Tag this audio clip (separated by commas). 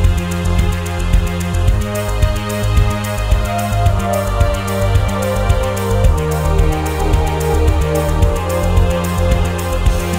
Music